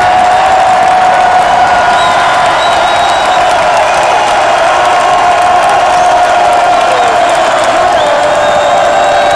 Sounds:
Crowd

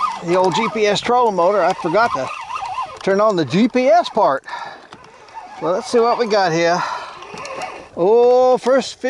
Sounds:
Speech, outside, rural or natural

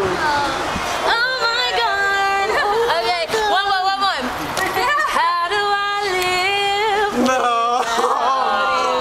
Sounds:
Female singing, Speech

